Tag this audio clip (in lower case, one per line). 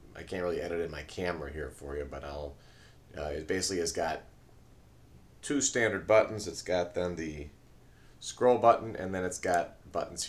speech